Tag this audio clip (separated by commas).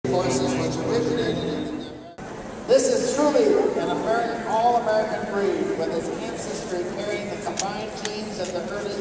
Music, Speech, inside a public space